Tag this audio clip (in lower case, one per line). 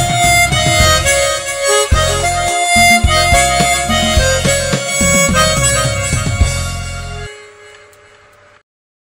playing harmonica